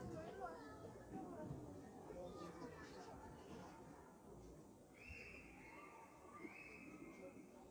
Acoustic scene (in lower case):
park